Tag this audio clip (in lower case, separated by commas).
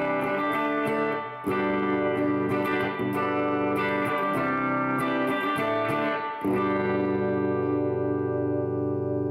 plucked string instrument, musical instrument, guitar, music, electric guitar, effects unit